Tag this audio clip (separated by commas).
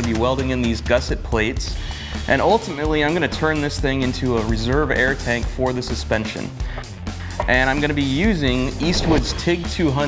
Speech, Music